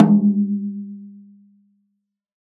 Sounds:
drum, snare drum, music, musical instrument, percussion

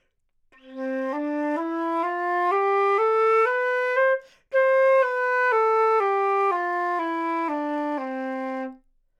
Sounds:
musical instrument, music, woodwind instrument

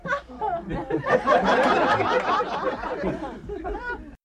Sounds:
human voice, laughter

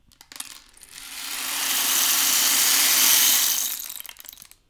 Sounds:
rattle

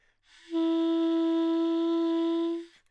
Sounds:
woodwind instrument, musical instrument, music

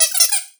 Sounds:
squeak

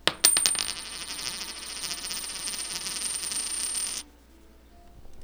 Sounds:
home sounds, coin (dropping)

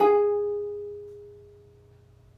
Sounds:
music, plucked string instrument, musical instrument

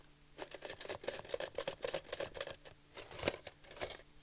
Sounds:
home sounds, silverware

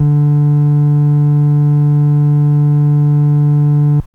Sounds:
organ, keyboard (musical), musical instrument, music

